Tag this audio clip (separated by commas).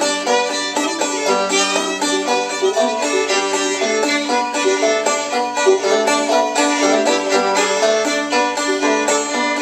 Music, Musical instrument, fiddle, Pizzicato